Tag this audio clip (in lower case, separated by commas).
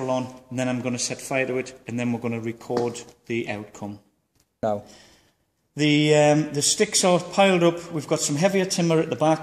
speech